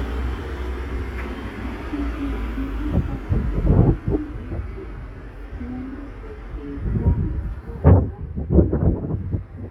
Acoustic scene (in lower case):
street